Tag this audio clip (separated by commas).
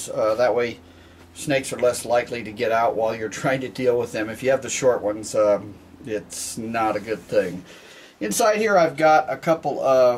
Speech, inside a small room